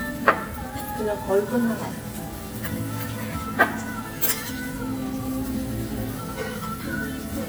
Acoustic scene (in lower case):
restaurant